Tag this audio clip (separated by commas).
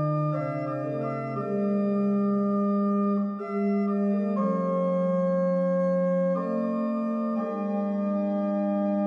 Music